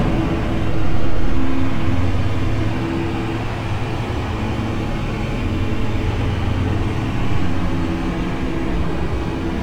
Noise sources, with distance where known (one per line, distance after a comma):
large-sounding engine, near